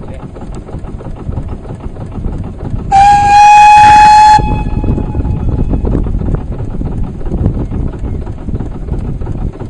Sound of a train followed by a horn sound